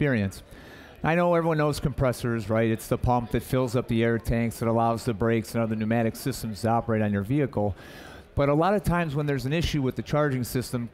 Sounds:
speech

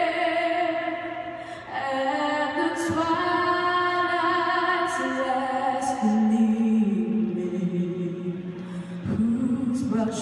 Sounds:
female singing

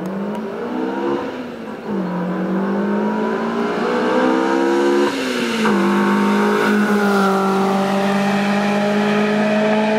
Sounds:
race car, car, vehicle

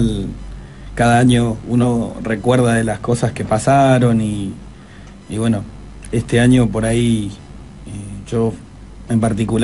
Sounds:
speech

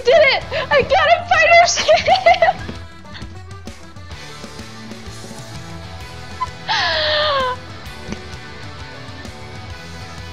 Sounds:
music, speech

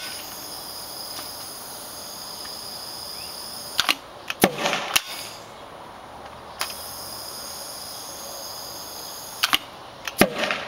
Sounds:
outside, urban or man-made

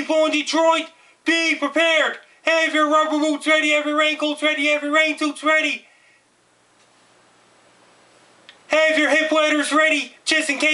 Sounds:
speech

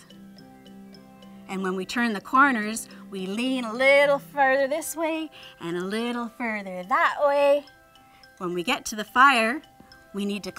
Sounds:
speech, music

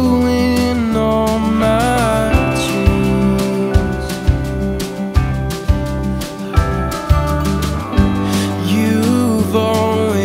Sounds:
music, soul music, rhythm and blues

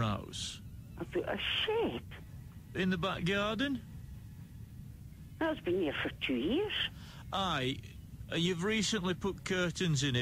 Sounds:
speech

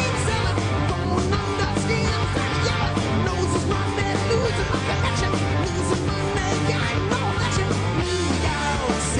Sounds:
music

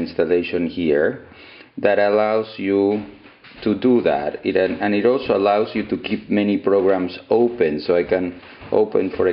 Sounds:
speech

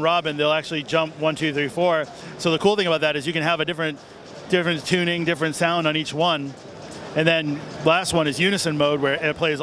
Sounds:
speech

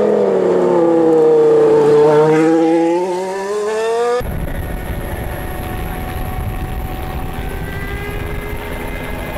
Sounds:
motor vehicle (road), vehicle, car passing by, car

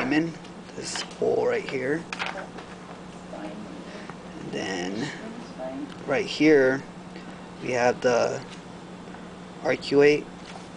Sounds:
speech, inside a small room

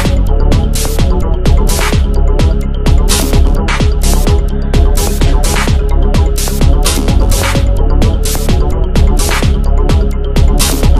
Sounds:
music, trance music, techno, electronic music

